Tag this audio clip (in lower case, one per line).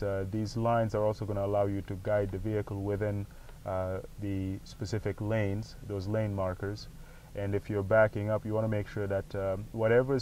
speech